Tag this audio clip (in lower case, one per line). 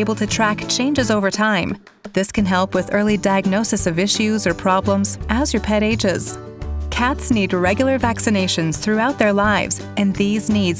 music
speech